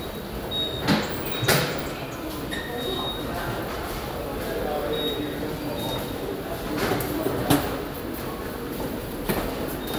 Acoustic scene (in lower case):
subway station